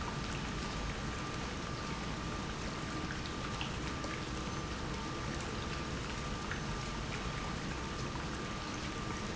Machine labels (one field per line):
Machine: pump